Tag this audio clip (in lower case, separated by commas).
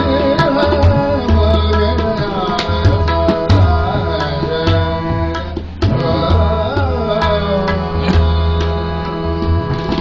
playing tabla